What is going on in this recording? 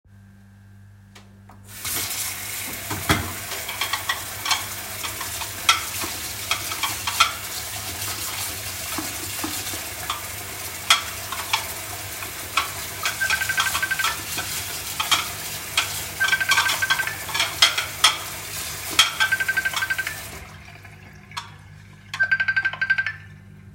I'm doing the dishes, while I get a phone call from my boss.